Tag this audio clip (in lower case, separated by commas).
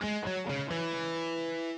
plucked string instrument, musical instrument, music, electric guitar, guitar